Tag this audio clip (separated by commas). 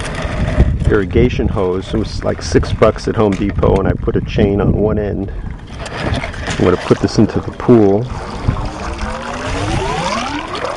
Speech